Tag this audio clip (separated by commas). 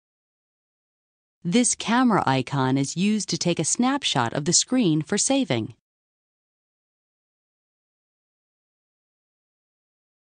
Speech